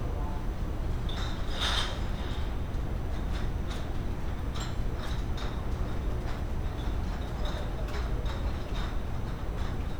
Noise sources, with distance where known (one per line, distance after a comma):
non-machinery impact, near